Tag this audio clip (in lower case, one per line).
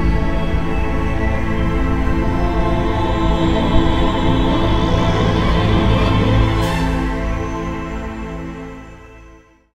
music